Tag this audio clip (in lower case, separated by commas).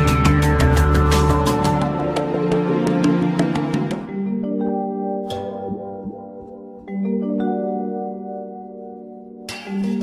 music, vibraphone